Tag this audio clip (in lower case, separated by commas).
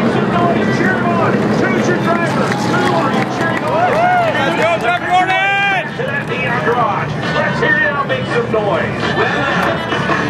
speech